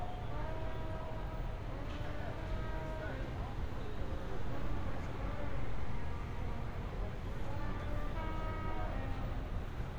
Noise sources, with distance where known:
unidentified human voice

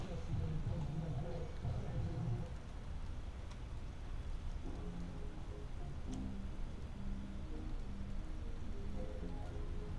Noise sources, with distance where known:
music from a fixed source

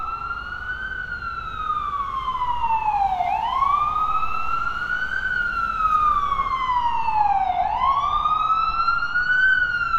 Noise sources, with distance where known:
siren, near

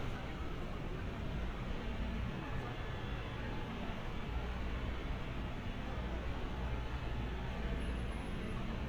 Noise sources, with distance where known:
person or small group talking

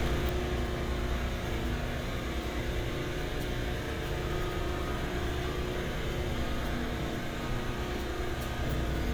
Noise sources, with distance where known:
engine of unclear size, near

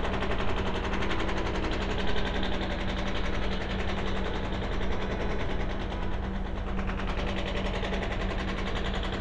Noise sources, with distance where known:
hoe ram

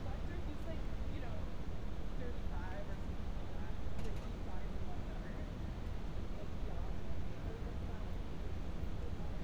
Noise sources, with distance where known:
person or small group talking

